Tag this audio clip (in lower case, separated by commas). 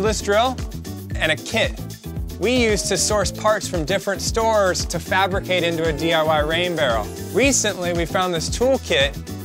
speech, music